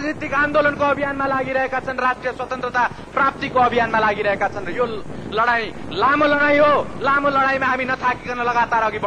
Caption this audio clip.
A man delivers a speech quickly